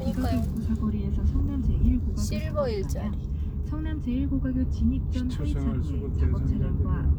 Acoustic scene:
car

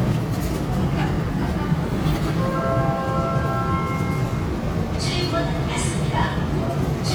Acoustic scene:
subway train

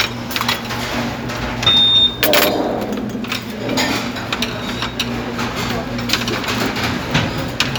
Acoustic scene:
restaurant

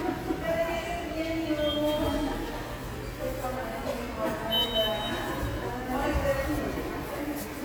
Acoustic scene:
subway station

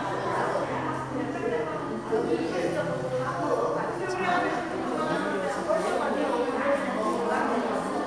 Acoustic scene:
crowded indoor space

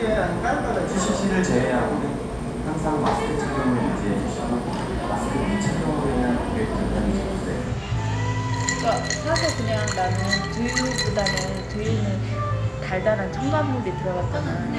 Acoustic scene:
cafe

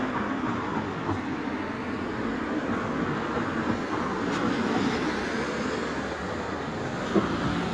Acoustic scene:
street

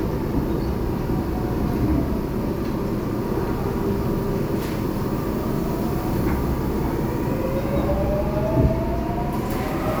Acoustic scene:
subway train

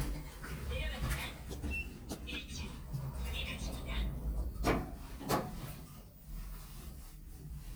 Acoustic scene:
elevator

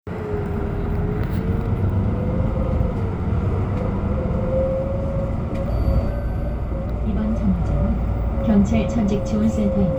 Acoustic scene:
bus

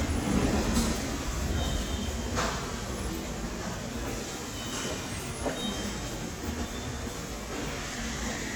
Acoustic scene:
subway station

